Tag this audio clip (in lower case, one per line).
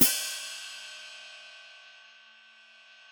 musical instrument
percussion
hi-hat
music
cymbal